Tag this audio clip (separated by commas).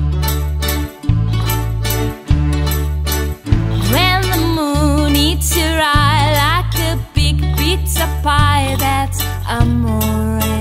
Background music, Music